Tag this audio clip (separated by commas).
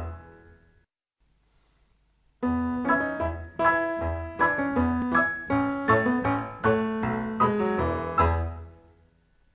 Music